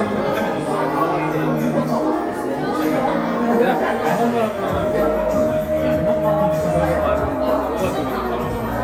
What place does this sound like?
crowded indoor space